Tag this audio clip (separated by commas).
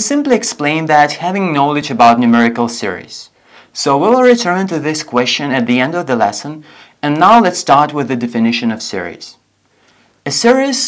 Speech